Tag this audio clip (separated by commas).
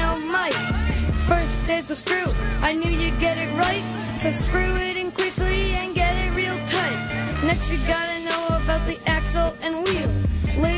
Hip hop music